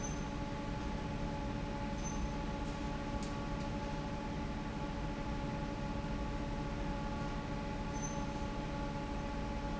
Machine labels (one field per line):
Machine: fan